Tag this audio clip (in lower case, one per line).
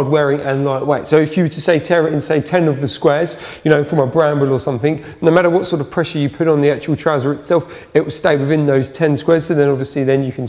speech